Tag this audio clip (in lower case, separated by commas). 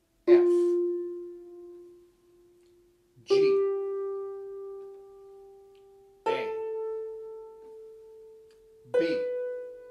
playing harp